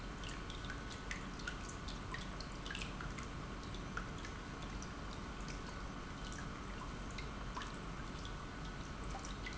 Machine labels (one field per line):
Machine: pump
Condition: normal